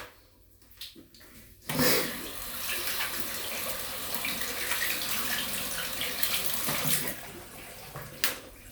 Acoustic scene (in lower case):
restroom